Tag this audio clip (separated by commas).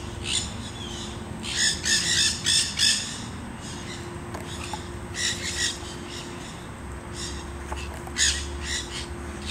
bird squawking